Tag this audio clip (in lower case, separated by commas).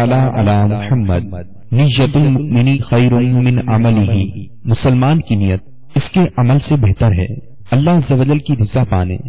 male speech, speech, speech synthesizer, monologue